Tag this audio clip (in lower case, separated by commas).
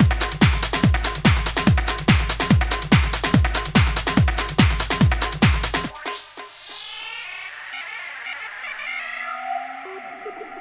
electronic music, music, techno